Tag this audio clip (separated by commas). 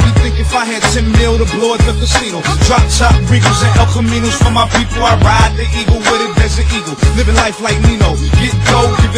Music